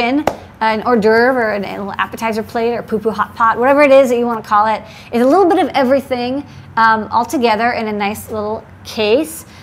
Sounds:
speech

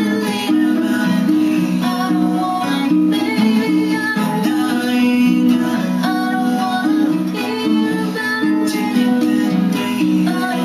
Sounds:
plucked string instrument
music
musical instrument
guitar
singing

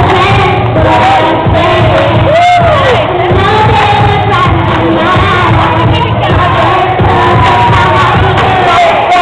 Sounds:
child singing
music

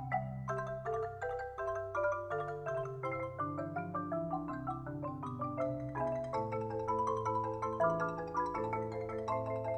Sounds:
playing marimba
mallet percussion
xylophone
glockenspiel

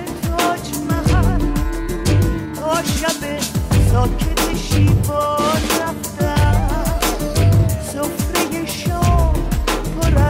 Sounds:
music
pop music

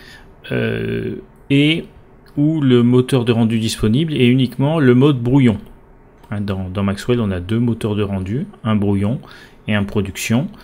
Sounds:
speech

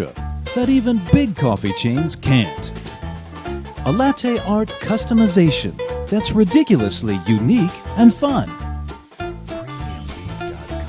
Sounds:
music
speech

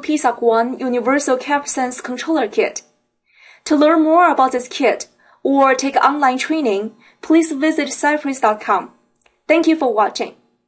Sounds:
speech
narration

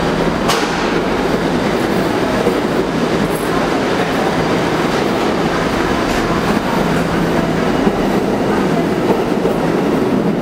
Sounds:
train
vehicle
railroad car
underground

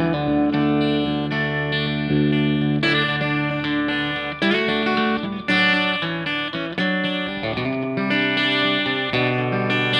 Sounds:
music

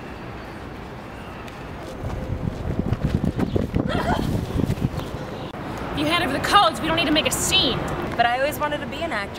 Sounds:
walk
run
speech

